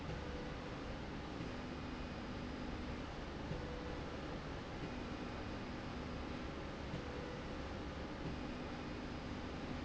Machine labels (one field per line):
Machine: slide rail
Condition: normal